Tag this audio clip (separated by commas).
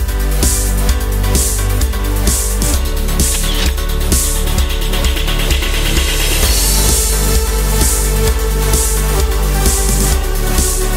Music